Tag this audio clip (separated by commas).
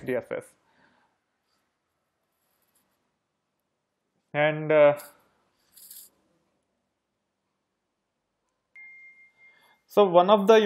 Speech